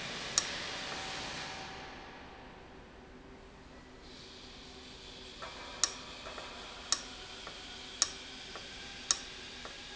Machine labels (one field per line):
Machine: valve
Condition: abnormal